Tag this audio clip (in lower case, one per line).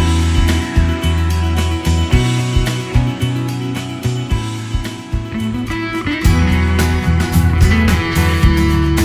music